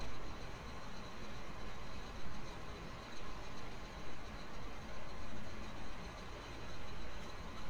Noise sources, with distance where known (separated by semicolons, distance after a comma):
engine of unclear size, near